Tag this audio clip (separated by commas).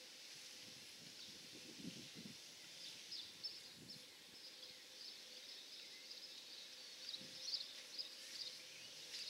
Environmental noise